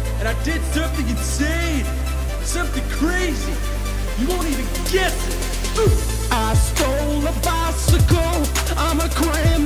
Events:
0.0s-9.6s: music
0.2s-0.6s: male speech
0.7s-1.9s: male speech
2.4s-3.5s: male speech
4.2s-5.1s: male speech
5.7s-5.9s: male speech
6.3s-8.4s: male singing
8.7s-9.6s: male singing

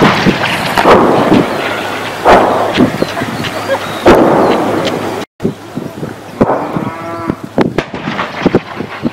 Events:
0.0s-5.2s: wind
0.7s-1.6s: artillery fire
2.1s-3.0s: artillery fire
4.0s-5.0s: artillery fire
5.4s-9.1s: wind
6.2s-7.1s: artillery fire
6.3s-7.4s: animal
7.6s-9.1s: artillery fire

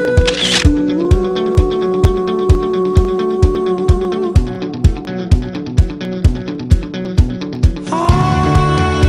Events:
0.0s-0.3s: male singing
0.0s-9.0s: music
0.2s-0.6s: camera
0.7s-4.4s: male singing
7.8s-9.0s: male singing

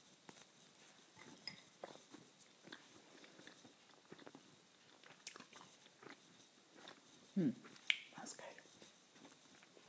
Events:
0.0s-9.8s: background noise
0.2s-0.4s: generic impact sounds
1.1s-1.2s: generic impact sounds
1.4s-1.6s: generic impact sounds
1.8s-2.2s: chewing
2.0s-2.2s: generic impact sounds
2.4s-2.5s: generic impact sounds
2.5s-3.8s: chewing
2.7s-2.8s: generic impact sounds
3.9s-4.7s: chewing
4.9s-6.2s: chewing
6.7s-7.0s: chewing
7.3s-7.5s: human voice
7.7s-7.8s: generic impact sounds
7.8s-8.0s: human voice
8.1s-8.7s: whispering
8.7s-8.9s: generic impact sounds
8.7s-9.8s: chewing

